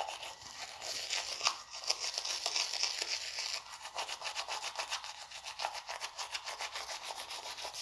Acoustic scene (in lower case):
restroom